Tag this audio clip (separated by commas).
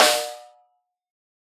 Percussion, Snare drum, Musical instrument, Drum, Music